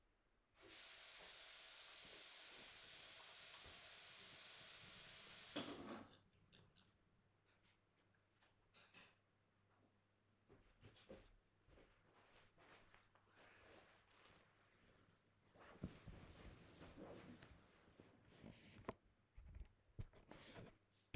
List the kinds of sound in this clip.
running water, cutlery and dishes, light switch, footsteps